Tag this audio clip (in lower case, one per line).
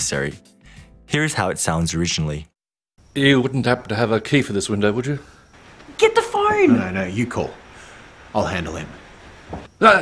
speech